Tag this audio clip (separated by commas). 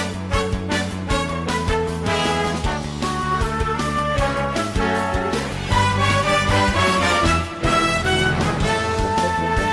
Music